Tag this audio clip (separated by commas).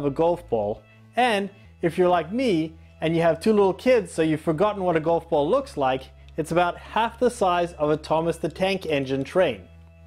Speech, Music